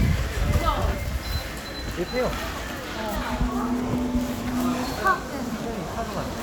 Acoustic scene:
crowded indoor space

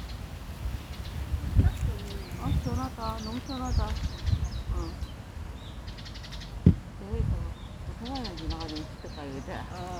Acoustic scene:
park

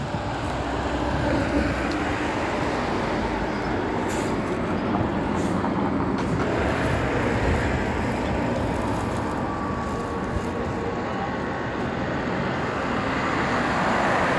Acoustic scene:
street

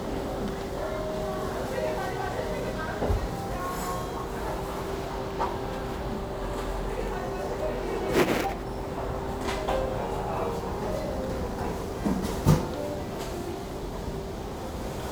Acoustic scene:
restaurant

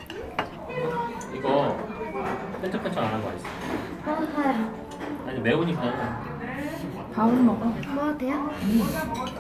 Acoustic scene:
crowded indoor space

